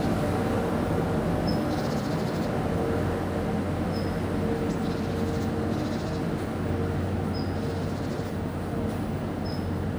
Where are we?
in a residential area